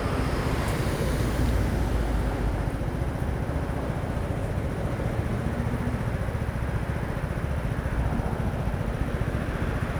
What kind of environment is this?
street